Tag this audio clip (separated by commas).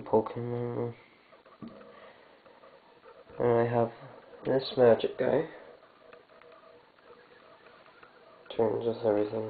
Speech